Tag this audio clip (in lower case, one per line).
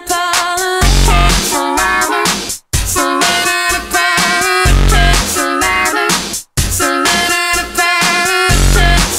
music